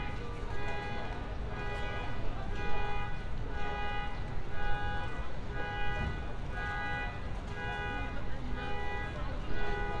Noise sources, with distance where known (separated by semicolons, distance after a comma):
car alarm; person or small group talking, far